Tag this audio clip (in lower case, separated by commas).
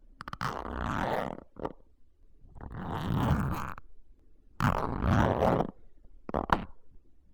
home sounds, zipper (clothing)